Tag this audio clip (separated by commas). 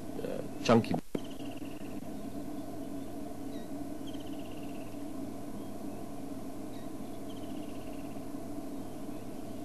Bird, Speech